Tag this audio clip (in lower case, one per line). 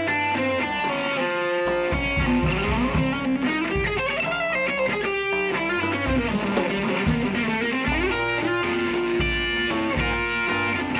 saxophone
playing electric guitar
guitar
electric guitar
music
musical instrument